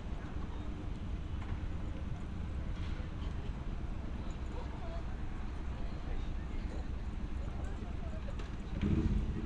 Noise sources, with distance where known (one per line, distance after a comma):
person or small group talking, far